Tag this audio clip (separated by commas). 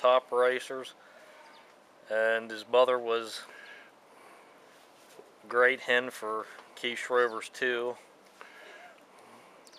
Speech, Bird